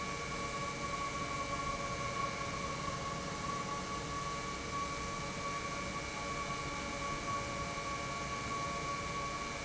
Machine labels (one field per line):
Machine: pump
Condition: normal